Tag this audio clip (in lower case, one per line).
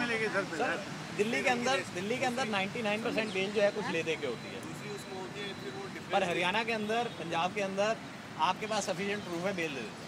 speech